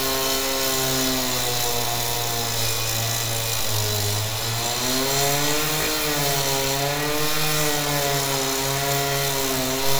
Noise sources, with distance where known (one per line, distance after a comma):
chainsaw, near